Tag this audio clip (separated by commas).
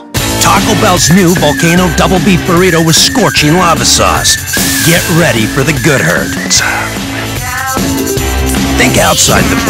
Speech, Music